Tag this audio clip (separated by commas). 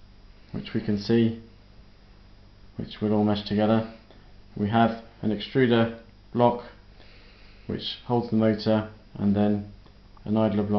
Speech